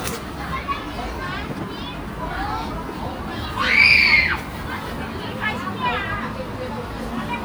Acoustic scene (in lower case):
park